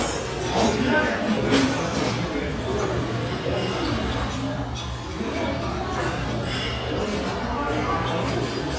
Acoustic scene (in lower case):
restaurant